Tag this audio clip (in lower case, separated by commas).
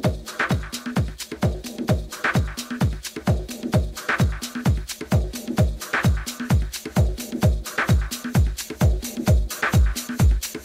music